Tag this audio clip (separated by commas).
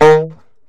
Music, woodwind instrument, Musical instrument